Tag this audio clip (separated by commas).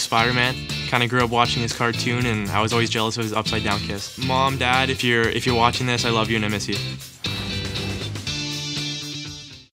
Speech, Music